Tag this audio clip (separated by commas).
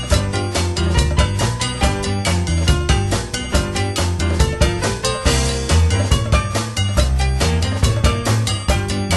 Music, Video game music